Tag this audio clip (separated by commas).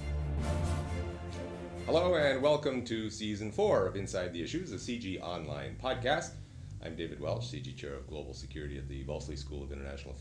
Music, Speech